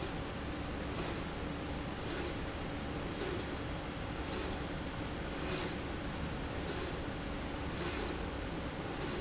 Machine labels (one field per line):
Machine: slide rail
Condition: normal